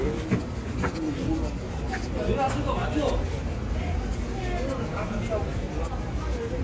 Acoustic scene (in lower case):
residential area